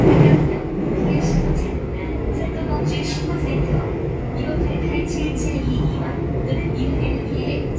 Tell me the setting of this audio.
subway train